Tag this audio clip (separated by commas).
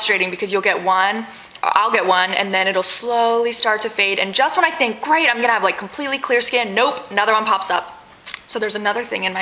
inside a large room or hall, Speech